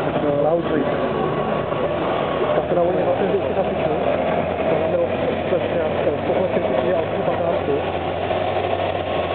People speak as a vehicle runs